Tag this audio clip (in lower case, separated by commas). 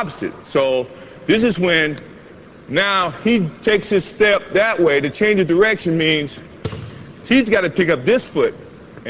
basketball bounce